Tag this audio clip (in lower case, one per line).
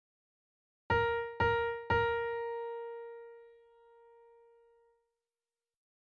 piano
music
keyboard (musical)
musical instrument